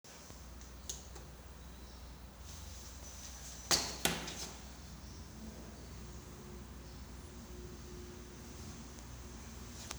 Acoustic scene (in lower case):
elevator